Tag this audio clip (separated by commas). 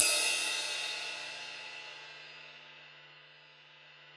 Music, Musical instrument, Cymbal, Crash cymbal, Percussion